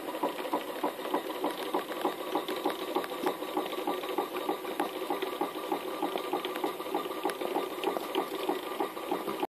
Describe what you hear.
A motor is idling and knocking